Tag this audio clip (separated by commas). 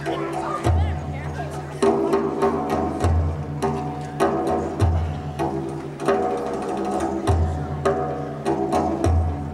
Music